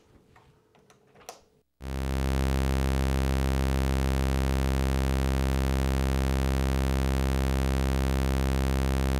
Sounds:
playing synthesizer

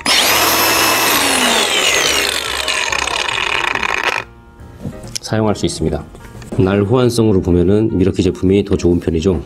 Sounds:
electric grinder grinding

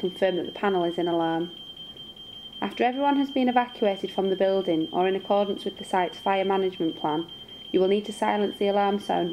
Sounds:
fire alarm
speech
alarm clock

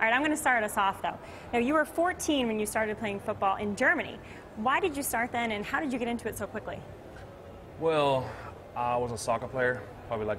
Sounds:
speech

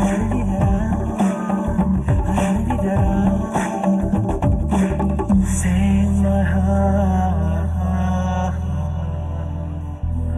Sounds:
singing
music
inside a large room or hall

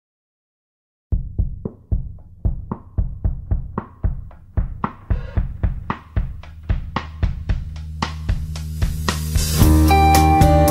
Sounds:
drum

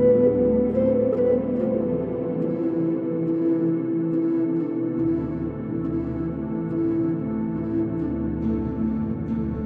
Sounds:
ambient music
music

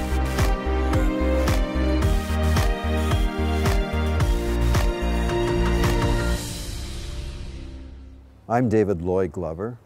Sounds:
music
speech

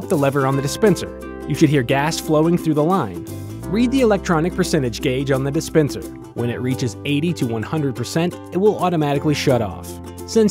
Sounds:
music
speech

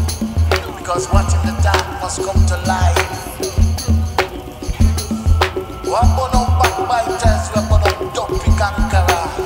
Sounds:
music
speech

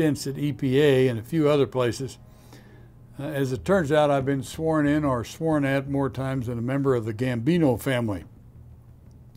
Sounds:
speech

